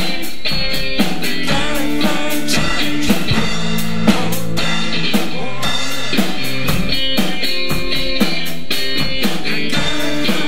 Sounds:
music

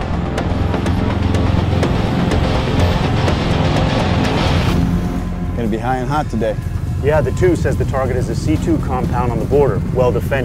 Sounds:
speech
music

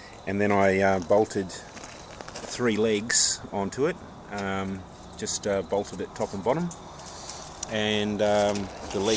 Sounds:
speech

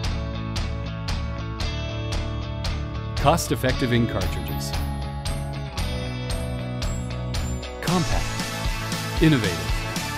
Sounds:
music
speech

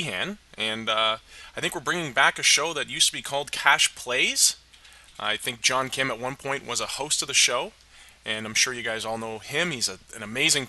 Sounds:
speech

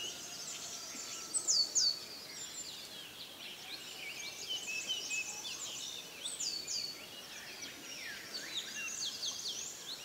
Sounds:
bird vocalization

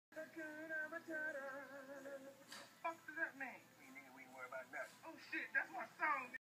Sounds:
singing

